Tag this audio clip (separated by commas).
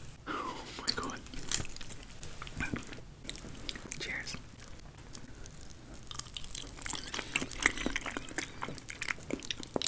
people eating apple